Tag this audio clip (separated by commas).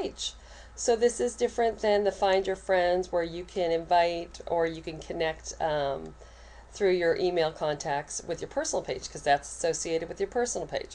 Speech